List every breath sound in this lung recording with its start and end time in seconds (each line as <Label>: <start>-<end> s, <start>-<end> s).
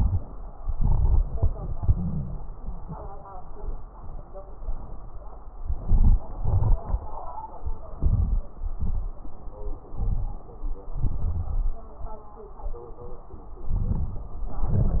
Inhalation: 0.69-1.47 s, 5.55-6.22 s, 7.92-8.59 s, 9.96-10.63 s, 13.67-14.59 s
Exhalation: 1.76-2.42 s, 6.39-7.05 s, 8.63-9.30 s, 10.87-11.87 s, 14.59-15.00 s
Crackles: 0.69-1.47 s, 1.76-2.42 s, 5.55-6.22 s, 6.39-7.05 s, 7.92-8.59 s, 8.63-9.30 s, 9.96-10.63 s, 10.87-11.87 s, 13.66-14.54 s, 14.59-15.00 s